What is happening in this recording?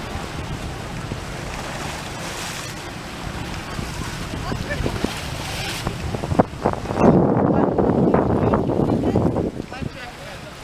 Water is splashing and people are speaking in the background